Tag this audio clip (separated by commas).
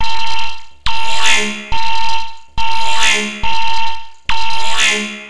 Alarm